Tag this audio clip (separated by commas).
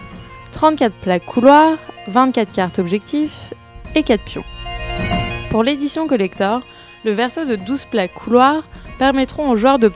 Music, Speech